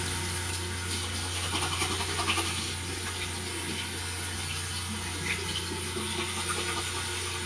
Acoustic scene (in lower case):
restroom